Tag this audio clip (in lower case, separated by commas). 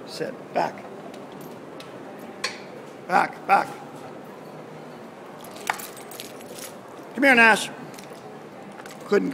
speech